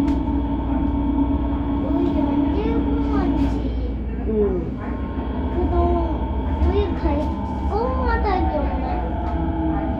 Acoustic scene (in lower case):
subway train